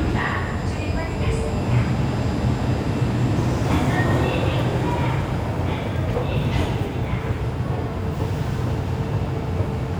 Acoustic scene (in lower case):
subway station